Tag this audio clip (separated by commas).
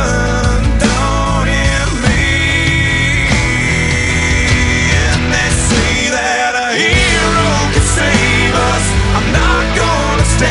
Music, Pop music